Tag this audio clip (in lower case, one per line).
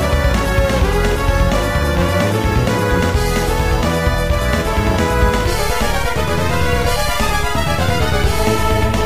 exciting music
music